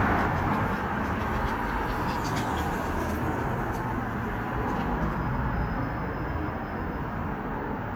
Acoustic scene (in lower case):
street